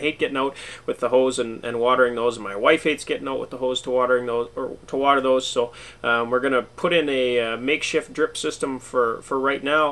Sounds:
Speech

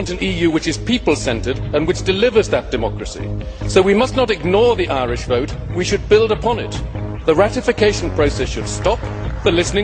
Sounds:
Speech

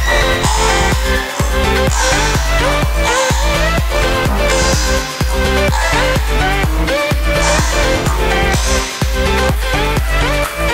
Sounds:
Music

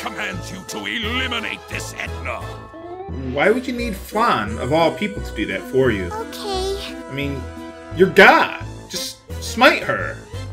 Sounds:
Music, Speech

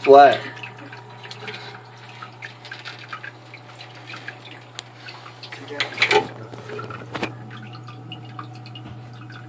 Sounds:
Speech

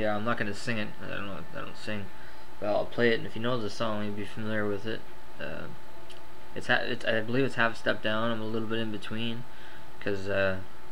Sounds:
Speech

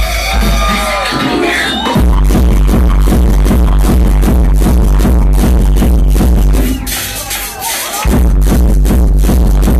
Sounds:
Music, Techno

